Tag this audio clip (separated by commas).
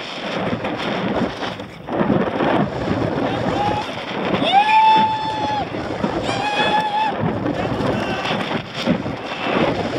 Speech